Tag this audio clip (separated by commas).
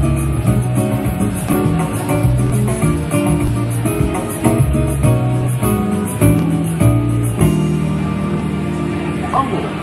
Pop music, Music